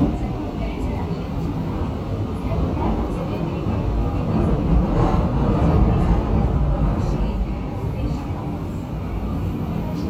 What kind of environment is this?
subway train